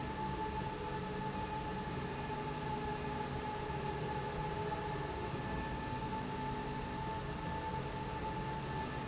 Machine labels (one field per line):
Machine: slide rail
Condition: normal